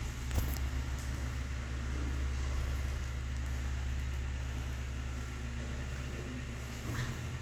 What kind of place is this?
elevator